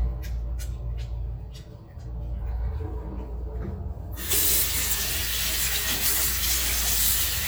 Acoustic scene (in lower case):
restroom